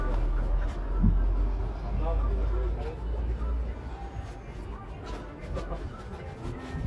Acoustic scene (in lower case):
residential area